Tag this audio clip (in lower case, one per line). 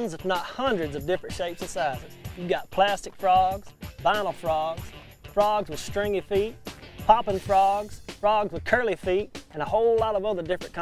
speech
music